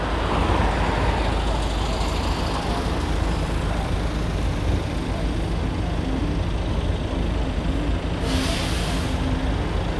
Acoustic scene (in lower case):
street